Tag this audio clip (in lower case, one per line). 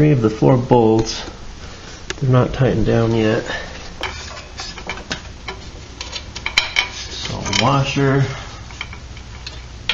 speech